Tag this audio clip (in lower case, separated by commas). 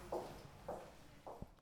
footsteps